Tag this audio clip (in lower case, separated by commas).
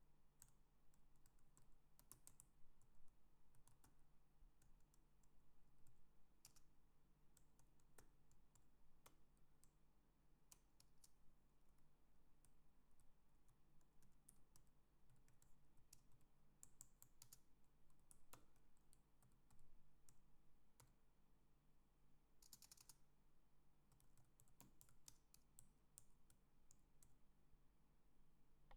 computer keyboard, typing, home sounds